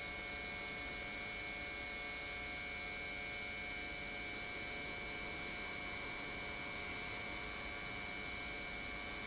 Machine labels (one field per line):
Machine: pump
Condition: normal